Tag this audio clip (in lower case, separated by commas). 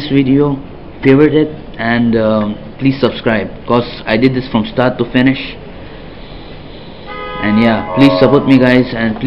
toot, speech, inside a small room